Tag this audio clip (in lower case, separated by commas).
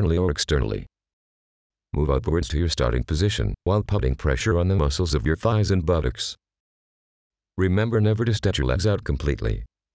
speech